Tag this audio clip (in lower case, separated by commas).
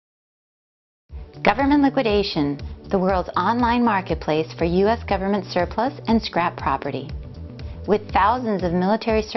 music, speech